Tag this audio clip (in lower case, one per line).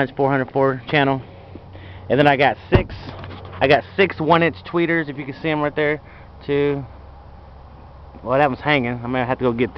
speech